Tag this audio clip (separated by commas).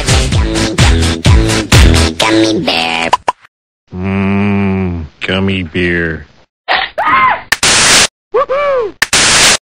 Music, Speech